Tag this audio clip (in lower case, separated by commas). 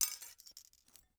glass